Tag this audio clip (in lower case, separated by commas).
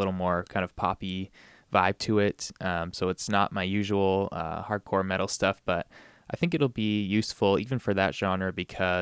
speech